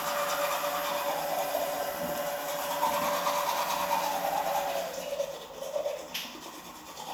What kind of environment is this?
restroom